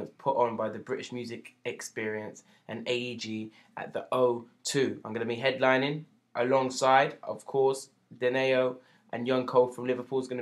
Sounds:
speech

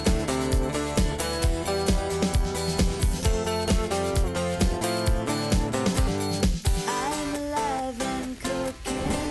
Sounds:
music

